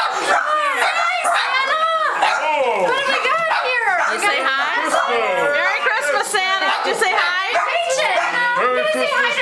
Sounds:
speech

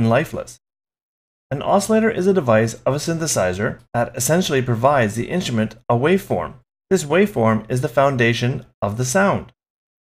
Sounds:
speech

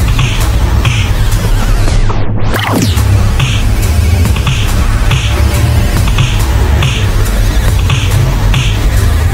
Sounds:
sound effect
music

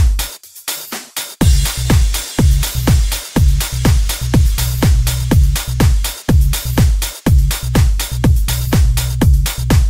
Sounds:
music
house music

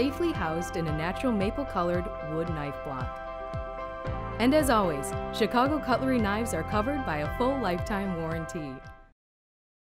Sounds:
music
speech

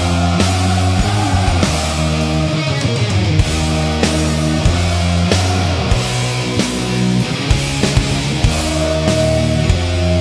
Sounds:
rock and roll
music

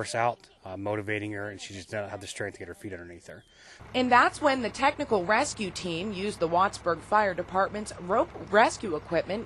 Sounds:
speech

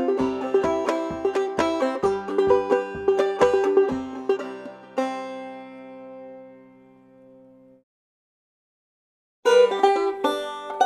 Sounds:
playing banjo

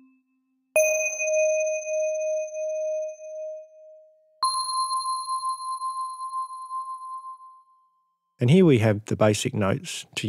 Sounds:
musical instrument
speech
music

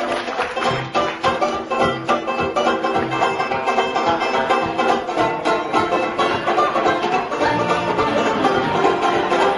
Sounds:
playing washboard

